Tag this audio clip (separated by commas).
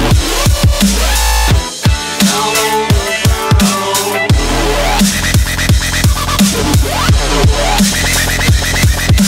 Music, Dubstep